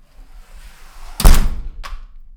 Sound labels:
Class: door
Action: closing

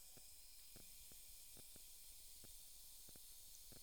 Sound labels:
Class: water tap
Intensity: medium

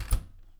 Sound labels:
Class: window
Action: closing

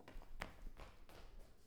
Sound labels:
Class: footsteps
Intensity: high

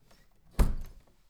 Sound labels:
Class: door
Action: closing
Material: wooden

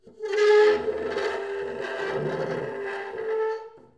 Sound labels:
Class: furniture moving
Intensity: medium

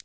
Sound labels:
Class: switch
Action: being turned off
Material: plastic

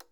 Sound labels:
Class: switch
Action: being turned on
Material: plastic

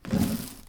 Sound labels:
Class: drawer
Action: opening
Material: wooden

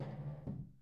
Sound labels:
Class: furniture moving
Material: wooden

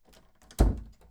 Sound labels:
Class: door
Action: closing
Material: wooden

